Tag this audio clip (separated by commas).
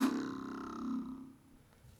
Domestic sounds, silverware